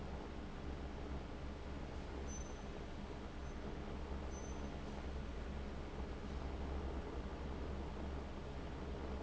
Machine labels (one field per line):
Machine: fan